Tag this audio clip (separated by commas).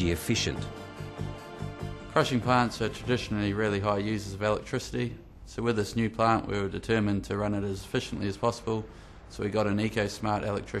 Music, Speech